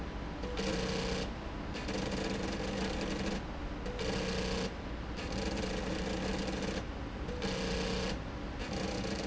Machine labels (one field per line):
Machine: slide rail